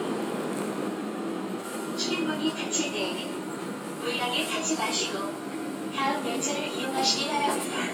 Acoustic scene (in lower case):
subway train